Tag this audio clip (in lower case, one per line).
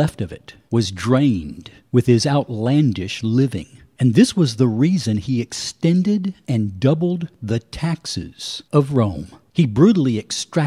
speech